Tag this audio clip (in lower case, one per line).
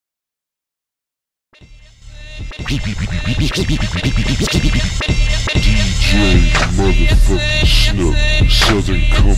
rapping